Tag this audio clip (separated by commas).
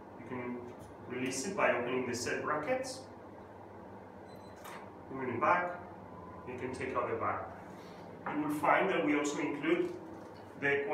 Speech